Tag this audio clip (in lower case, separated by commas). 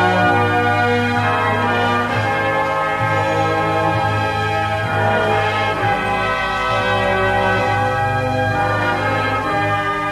music